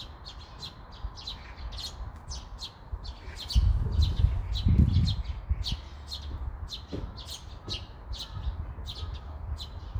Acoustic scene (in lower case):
park